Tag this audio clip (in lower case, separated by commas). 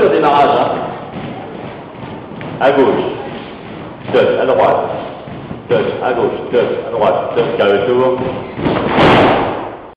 speech